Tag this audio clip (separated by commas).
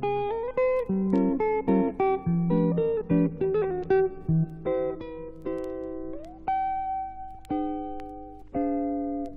Music, Plucked string instrument, Musical instrument, Strum, Guitar, Electric guitar